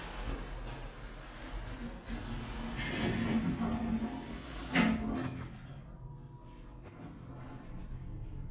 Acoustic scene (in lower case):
elevator